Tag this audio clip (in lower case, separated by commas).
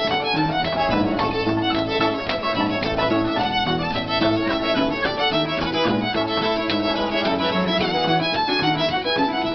music, musical instrument, fiddle